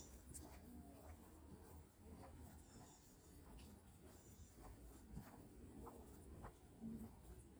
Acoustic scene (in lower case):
park